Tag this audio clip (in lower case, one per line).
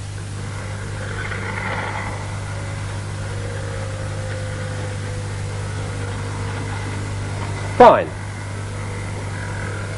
speech